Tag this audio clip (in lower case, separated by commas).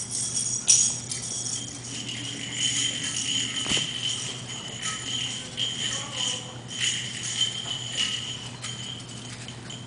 inside a small room, speech